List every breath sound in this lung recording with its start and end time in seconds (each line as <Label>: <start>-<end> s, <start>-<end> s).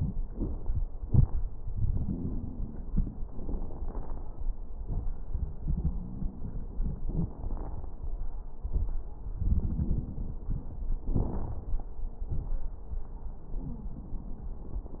Inhalation: 1.72-3.17 s, 5.64-7.01 s, 9.41-10.66 s
Exhalation: 3.26-4.46 s, 7.07-7.88 s, 11.01-11.66 s
Crackles: 1.72-3.17 s, 3.26-4.46 s, 5.64-7.01 s, 7.07-7.88 s, 9.41-10.66 s, 11.01-11.66 s